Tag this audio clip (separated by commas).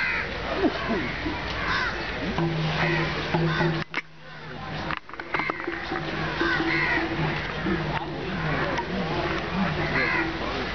Speech